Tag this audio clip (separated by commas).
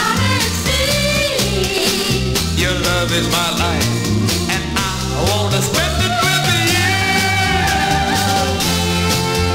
Music, Sound effect